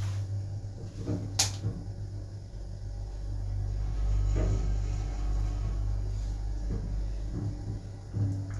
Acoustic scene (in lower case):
elevator